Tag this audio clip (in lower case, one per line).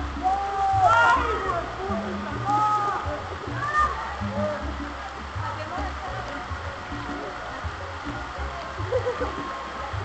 rain
raindrop
rain on surface